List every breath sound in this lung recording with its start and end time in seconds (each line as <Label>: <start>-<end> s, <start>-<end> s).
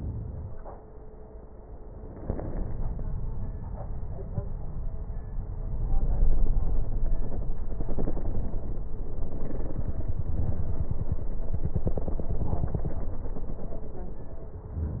Inhalation: 2.08-3.75 s